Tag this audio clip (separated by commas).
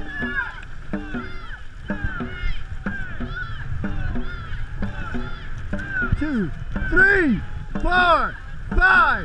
Boat, Vehicle, Speech